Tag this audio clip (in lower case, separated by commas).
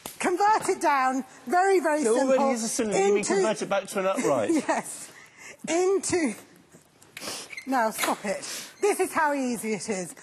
speech